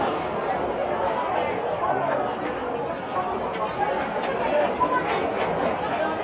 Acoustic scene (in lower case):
crowded indoor space